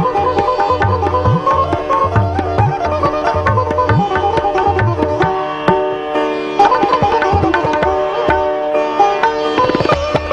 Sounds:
music, sitar

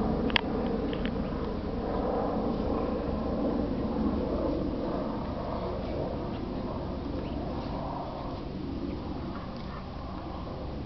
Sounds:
dog, domestic animals, animal

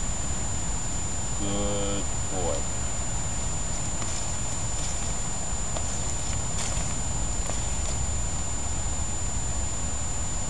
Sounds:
speech

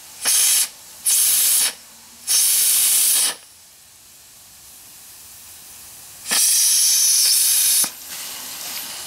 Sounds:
steam

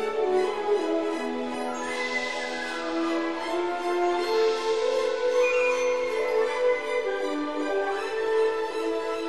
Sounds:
music

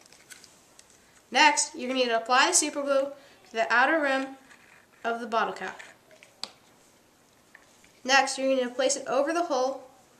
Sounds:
inside a small room, speech

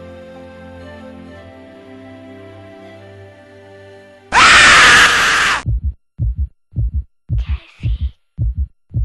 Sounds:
heart murmur

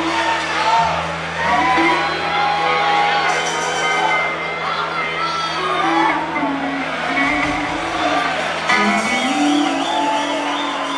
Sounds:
music, crowd

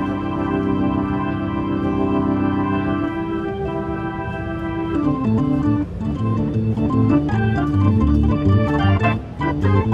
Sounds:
keyboard (musical), music, musical instrument

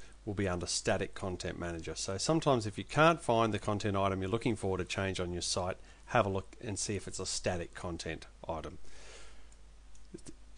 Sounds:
speech

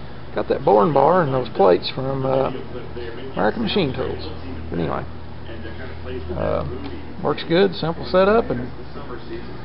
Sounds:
speech

